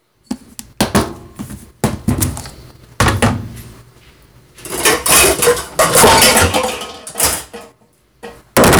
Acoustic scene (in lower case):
kitchen